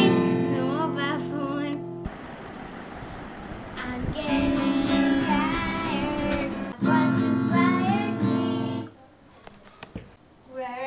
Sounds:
speech, music, independent music

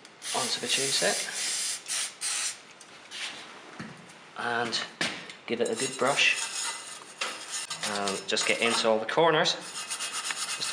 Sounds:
filing (rasp), rub

